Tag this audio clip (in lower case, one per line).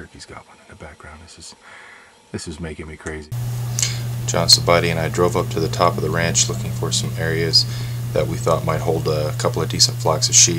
speech